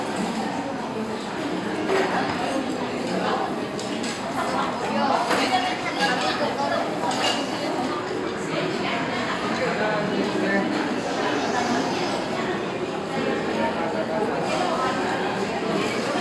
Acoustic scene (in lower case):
restaurant